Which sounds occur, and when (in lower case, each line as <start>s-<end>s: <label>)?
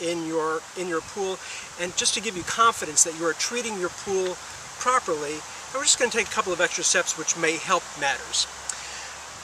0.0s-0.6s: male speech
0.0s-9.4s: background noise
0.7s-1.4s: male speech
1.4s-1.7s: breathing
1.8s-4.3s: male speech
4.8s-5.4s: male speech
5.7s-8.5s: male speech
8.7s-9.3s: breathing